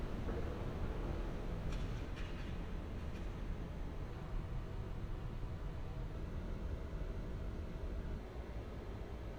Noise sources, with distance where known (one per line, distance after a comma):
background noise